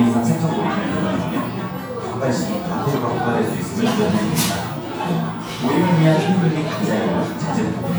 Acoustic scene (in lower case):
crowded indoor space